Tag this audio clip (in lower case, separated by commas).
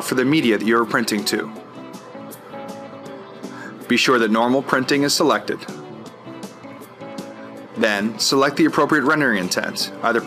music, speech